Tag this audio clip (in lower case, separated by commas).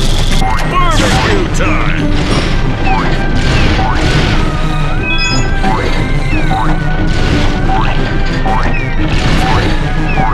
music